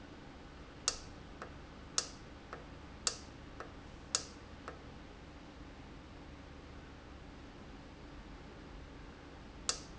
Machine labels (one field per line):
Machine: valve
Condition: normal